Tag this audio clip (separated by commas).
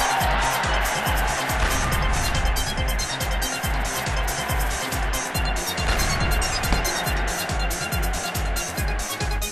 thwack